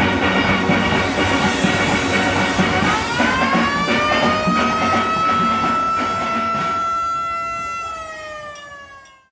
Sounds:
Steelpan, Music, Police car (siren)

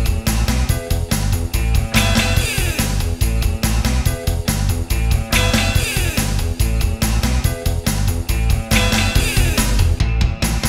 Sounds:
Music

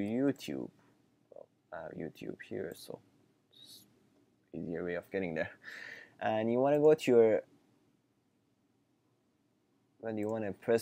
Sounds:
Speech

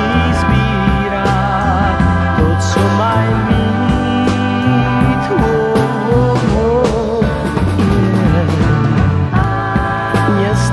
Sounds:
Music

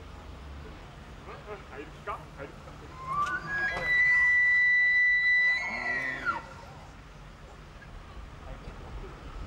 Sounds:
elk bugling

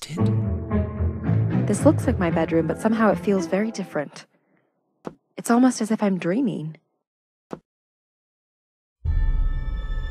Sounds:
Music, Speech

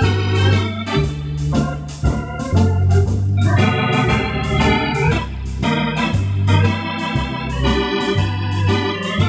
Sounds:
playing hammond organ

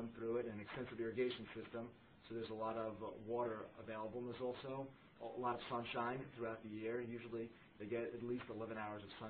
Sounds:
Speech

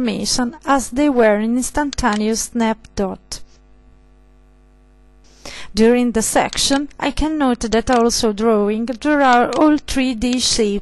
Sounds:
Speech

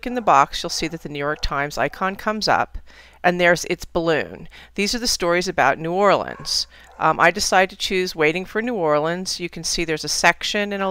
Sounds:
Speech

